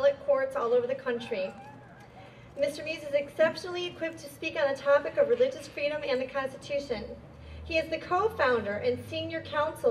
A woman is slowly giving a deliberate speech